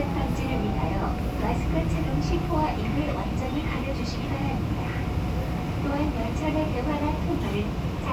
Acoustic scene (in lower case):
subway train